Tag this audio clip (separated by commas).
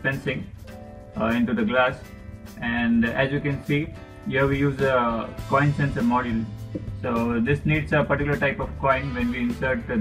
Music, Speech